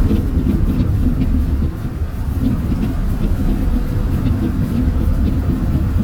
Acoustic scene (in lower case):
bus